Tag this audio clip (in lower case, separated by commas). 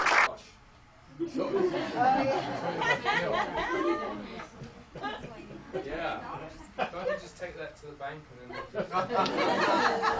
speech, chatter